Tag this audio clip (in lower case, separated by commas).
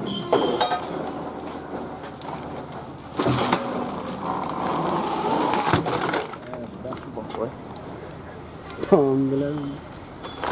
plastic bottle crushing